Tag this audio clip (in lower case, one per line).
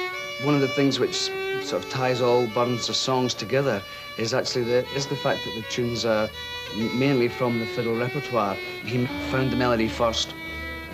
musical instrument
music
violin
speech